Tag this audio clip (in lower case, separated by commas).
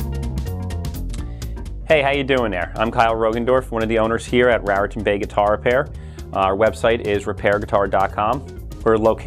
music, speech